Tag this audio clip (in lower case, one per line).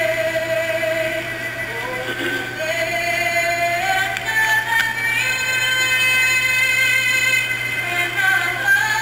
synthetic singing